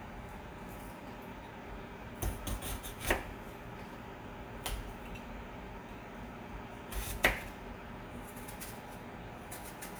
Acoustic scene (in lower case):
kitchen